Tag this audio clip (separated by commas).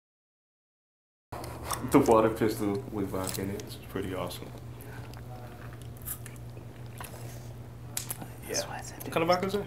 Speech